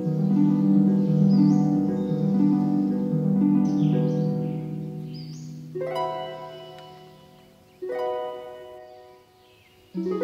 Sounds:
music

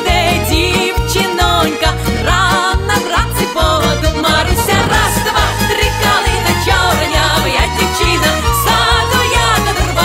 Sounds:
inside a large room or hall, music

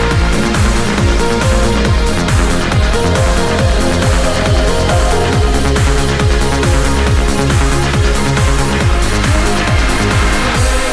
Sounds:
techno, music, electronic music

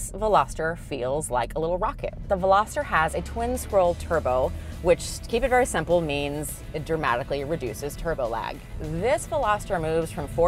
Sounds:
music, speech

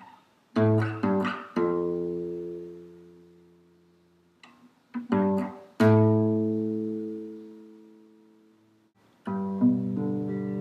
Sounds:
acoustic guitar, plucked string instrument, musical instrument, music, guitar

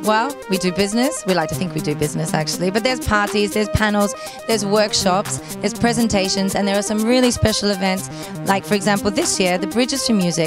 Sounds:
speech, music

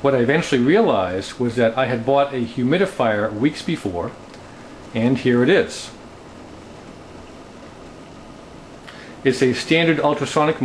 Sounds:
speech

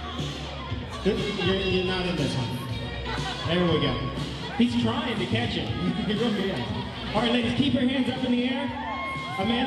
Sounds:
music, speech

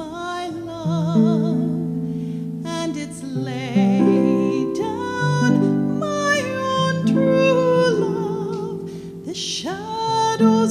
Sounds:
pizzicato, harp

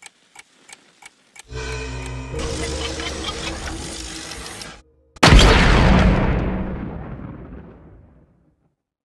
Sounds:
music

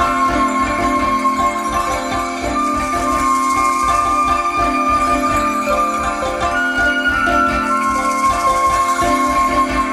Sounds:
music

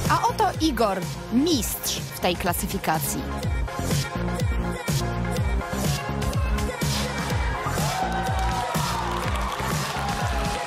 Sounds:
speech, music, electronic music

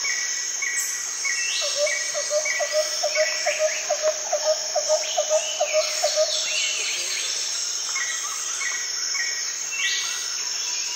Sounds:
animal, outside, rural or natural

